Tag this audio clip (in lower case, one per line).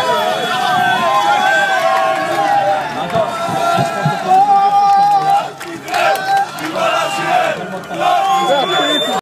bus
vehicle
speech